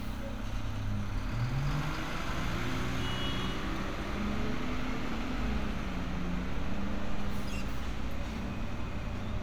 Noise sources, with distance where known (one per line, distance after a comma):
large-sounding engine
car horn